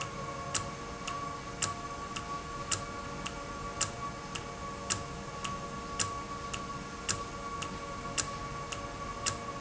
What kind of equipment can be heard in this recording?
valve